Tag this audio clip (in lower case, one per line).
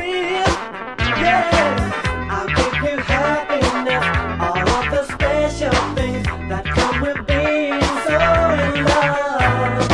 music
rhythm and blues
disco